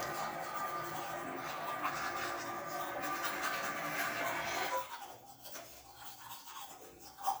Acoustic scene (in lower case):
restroom